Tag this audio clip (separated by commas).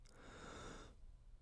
Breathing, Respiratory sounds